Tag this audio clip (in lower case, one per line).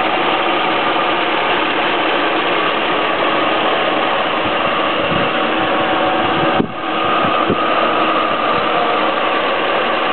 medium engine (mid frequency)
engine
vehicle
idling